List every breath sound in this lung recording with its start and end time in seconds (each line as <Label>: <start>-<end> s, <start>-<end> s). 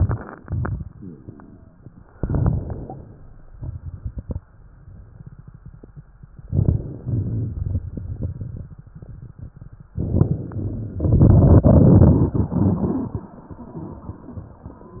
Inhalation: 0.00-0.38 s, 2.12-3.46 s, 6.52-7.03 s, 9.91-11.00 s
Exhalation: 0.48-1.82 s, 3.53-4.40 s, 7.04-9.87 s, 11.03-15.00 s
Crackles: 0.00-0.38 s, 0.48-1.82 s, 2.12-3.46 s, 3.53-4.40 s, 6.50-7.01 s, 7.04-9.87 s, 9.91-11.00 s, 11.03-15.00 s